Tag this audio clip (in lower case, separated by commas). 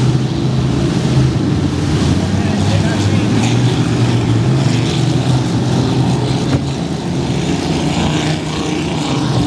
speech, motorboat, boat, vehicle